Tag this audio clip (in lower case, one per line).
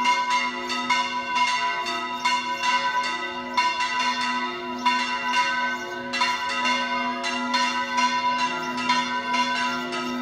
church bell ringing